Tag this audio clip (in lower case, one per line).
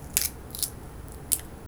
crack